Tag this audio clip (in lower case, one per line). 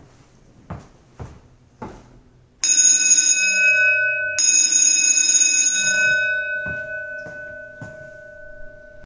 alarm